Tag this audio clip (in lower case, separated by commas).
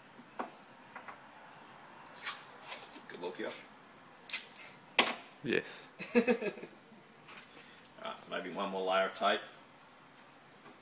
speech, inside a small room